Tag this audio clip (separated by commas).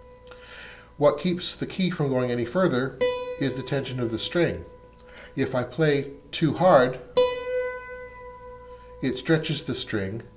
Music, Mandolin, Speech